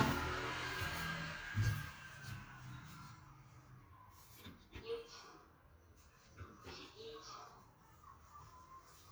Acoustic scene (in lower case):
elevator